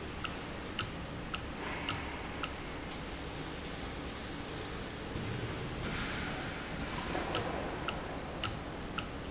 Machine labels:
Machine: valve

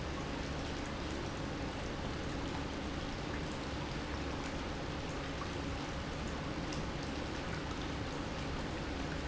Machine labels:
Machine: pump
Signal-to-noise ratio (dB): -6 dB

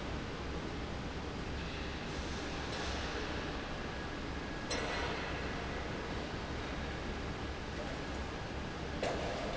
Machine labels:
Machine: fan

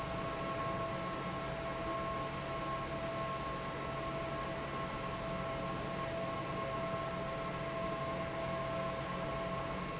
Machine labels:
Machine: fan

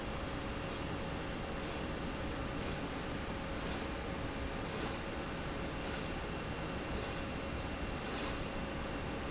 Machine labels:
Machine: slide rail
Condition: normal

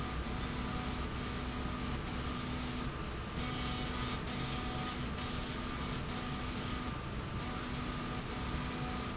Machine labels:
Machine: slide rail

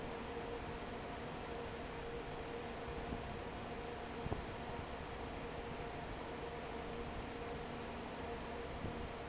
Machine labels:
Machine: fan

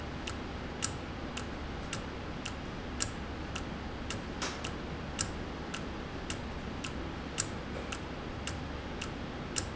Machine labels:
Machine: valve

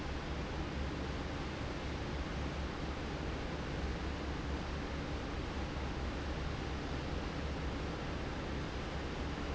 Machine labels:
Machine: fan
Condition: normal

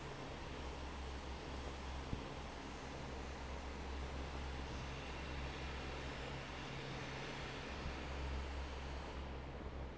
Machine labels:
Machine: fan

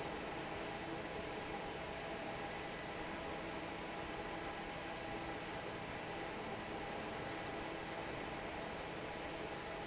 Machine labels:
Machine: fan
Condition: normal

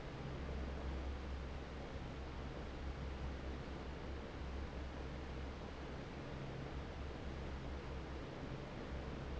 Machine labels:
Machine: fan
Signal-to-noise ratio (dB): 6 dB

